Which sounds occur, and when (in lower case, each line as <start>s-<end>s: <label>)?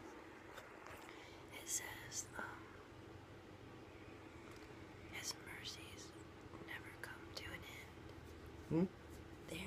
0.0s-9.6s: air conditioning
0.5s-0.6s: generic impact sounds
0.8s-1.1s: generic impact sounds
1.0s-1.5s: breathing
1.4s-2.5s: whispering
1.5s-9.6s: conversation
4.4s-4.6s: generic impact sounds
5.1s-6.1s: whispering
6.6s-7.9s: whispering
8.7s-8.9s: human sounds